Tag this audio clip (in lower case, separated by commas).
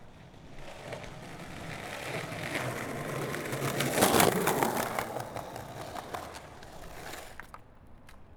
skateboard, vehicle